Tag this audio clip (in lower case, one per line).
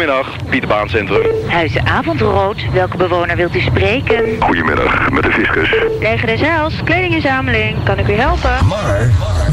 radio
speech